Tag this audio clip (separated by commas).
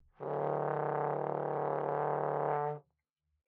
Music, Brass instrument, Musical instrument